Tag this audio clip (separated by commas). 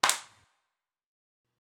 Clapping, Hands